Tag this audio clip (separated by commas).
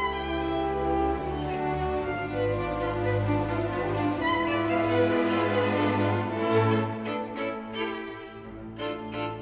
Violin, Musical instrument, Music